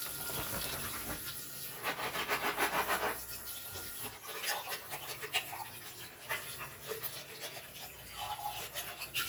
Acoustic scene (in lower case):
kitchen